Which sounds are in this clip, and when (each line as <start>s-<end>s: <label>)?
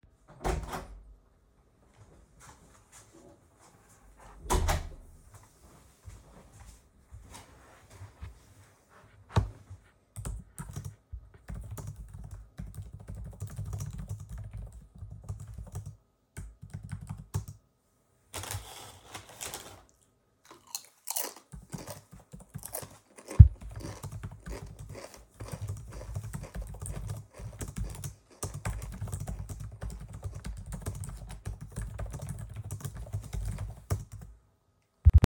0.3s-1.0s: door
1.9s-4.4s: footsteps
4.4s-5.1s: door
4.9s-8.8s: footsteps
10.0s-17.7s: keyboard typing
21.5s-34.4s: keyboard typing